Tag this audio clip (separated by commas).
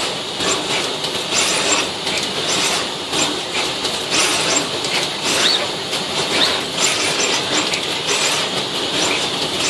Power tool, Tools